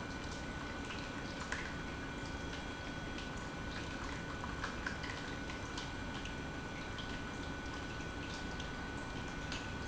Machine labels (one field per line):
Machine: pump